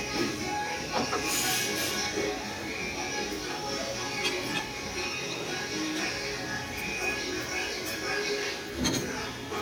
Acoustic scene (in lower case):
restaurant